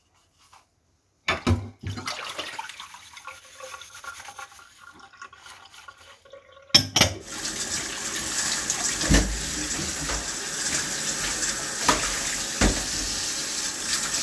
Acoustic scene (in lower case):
kitchen